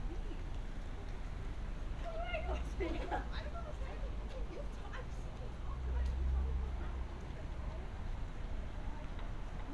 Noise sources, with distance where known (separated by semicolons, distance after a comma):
person or small group talking, near